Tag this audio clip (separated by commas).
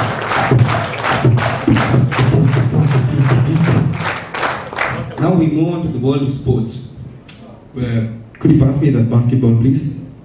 beat boxing